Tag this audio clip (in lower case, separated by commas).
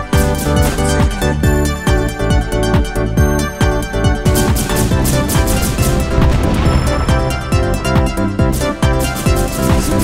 music